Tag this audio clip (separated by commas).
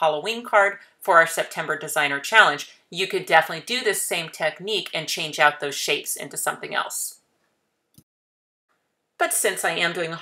Speech